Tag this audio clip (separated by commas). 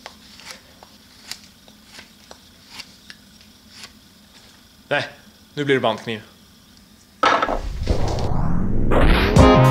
Speech